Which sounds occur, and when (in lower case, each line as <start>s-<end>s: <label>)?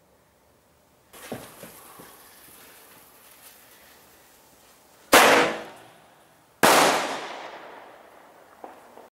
0.0s-9.1s: background noise
1.6s-5.1s: generic impact sounds
7.2s-9.1s: echo
8.9s-9.0s: firecracker